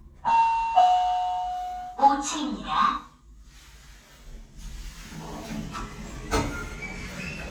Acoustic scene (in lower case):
elevator